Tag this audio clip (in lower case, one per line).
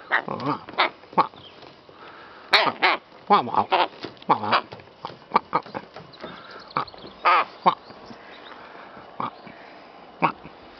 crow
bird